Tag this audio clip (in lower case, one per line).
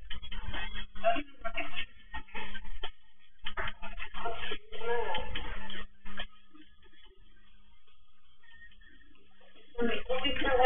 speech
inside a small room